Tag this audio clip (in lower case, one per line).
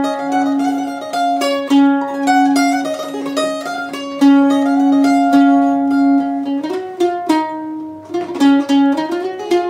mandolin
music